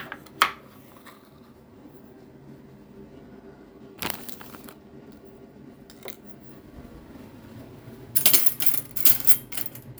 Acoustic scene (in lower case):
kitchen